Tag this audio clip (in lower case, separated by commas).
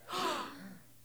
gasp, breathing, respiratory sounds